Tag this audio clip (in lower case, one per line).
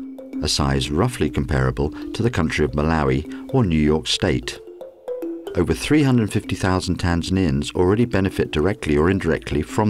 music
speech